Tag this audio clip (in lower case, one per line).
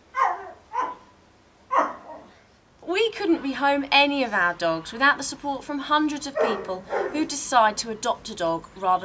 yip
speech